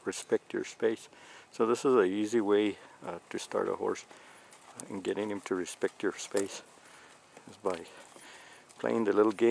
An adult male is speaking, and a clip-clop sound occurs